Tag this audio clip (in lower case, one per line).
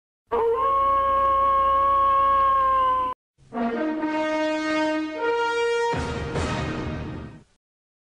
music
television